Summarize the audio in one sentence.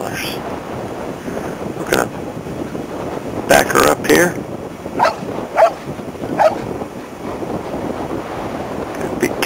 A man talking and dog barking while outside in the wind